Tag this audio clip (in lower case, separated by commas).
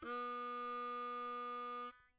harmonica, musical instrument, music